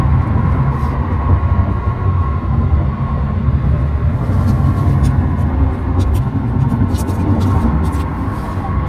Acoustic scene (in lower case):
car